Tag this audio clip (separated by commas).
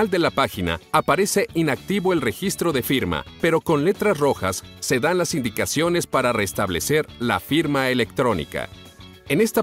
Music, Speech